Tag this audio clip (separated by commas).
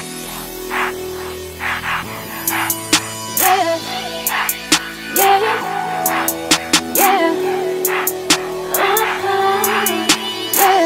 Rhythm and blues, Music